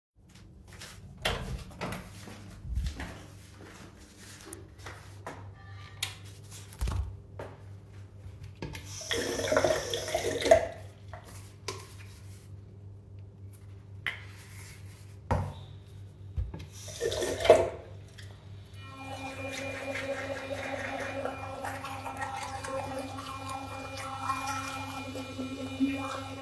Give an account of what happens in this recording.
I walk into the bathroom opening the door and turning on the light. I take my electric toothbrush, rinse it with water and apply toothpaste. I rinse the toothbrush again and start brushing my teeth.